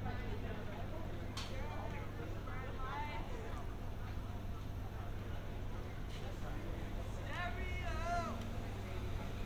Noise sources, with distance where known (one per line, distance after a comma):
person or small group talking, near